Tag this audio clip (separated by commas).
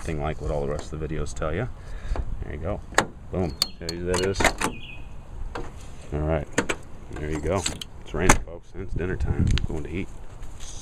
Speech